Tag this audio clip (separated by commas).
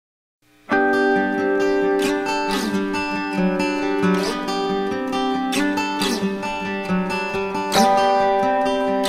Acoustic guitar